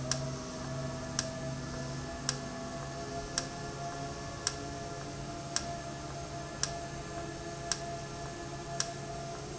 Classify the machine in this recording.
valve